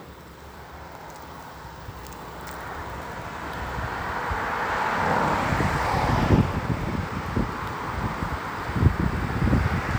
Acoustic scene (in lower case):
street